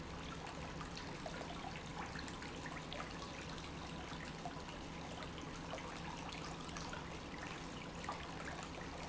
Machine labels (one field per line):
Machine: pump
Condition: normal